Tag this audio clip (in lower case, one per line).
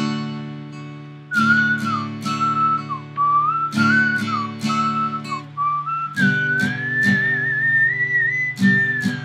plucked string instrument
guitar
music
musical instrument
whistling
acoustic guitar
strum